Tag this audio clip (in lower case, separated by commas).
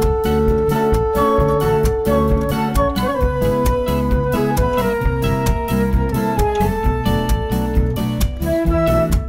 blues, music